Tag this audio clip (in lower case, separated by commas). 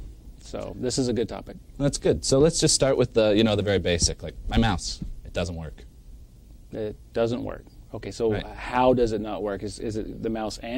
speech